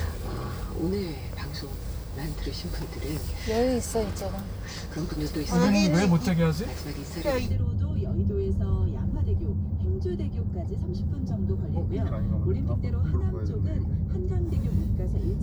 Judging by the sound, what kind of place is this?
car